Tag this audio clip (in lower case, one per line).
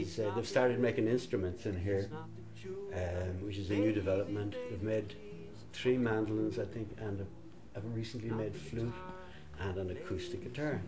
music
speech